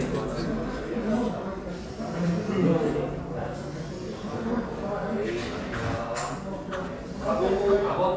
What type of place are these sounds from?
crowded indoor space